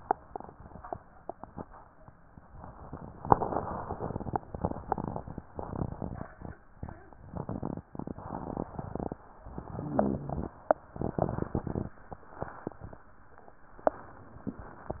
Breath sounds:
9.45-10.52 s: inhalation
9.62-10.52 s: rhonchi

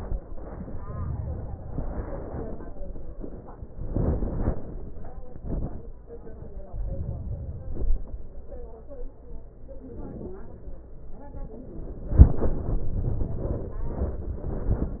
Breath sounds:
6.58-8.08 s: inhalation

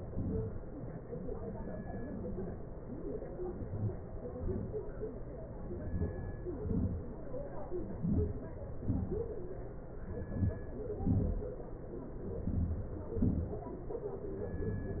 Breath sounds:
3.58-4.15 s: inhalation
4.42-4.79 s: exhalation
5.73-6.26 s: inhalation
6.51-6.94 s: exhalation
8.06-8.52 s: inhalation
8.88-9.27 s: exhalation
10.12-10.62 s: inhalation
11.09-11.47 s: exhalation
12.43-13.00 s: inhalation
13.24-13.68 s: exhalation

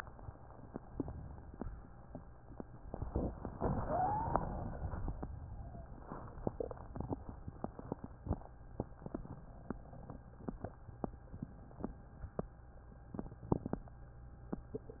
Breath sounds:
2.86-3.56 s: inhalation
2.86-3.56 s: crackles
3.65-4.35 s: wheeze
3.65-5.24 s: exhalation

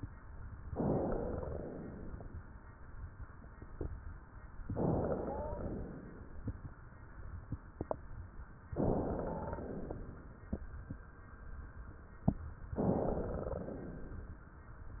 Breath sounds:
0.76-1.68 s: inhalation
0.81-1.49 s: wheeze
1.68-2.40 s: exhalation
4.72-5.70 s: inhalation
5.24-5.64 s: wheeze
5.72-6.48 s: exhalation
8.76-9.74 s: inhalation
9.24-9.64 s: wheeze
9.74-10.54 s: exhalation
12.74-13.64 s: inhalation
13.64-14.44 s: exhalation

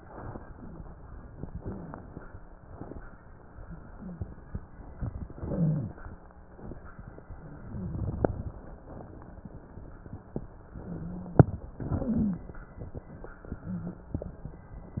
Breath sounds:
1.37-2.22 s: inhalation
1.46-1.96 s: wheeze
5.12-5.98 s: inhalation
5.48-5.98 s: wheeze
7.67-8.03 s: wheeze
7.67-8.60 s: inhalation
10.87-11.42 s: wheeze
11.78-12.49 s: inhalation
11.99-12.49 s: wheeze

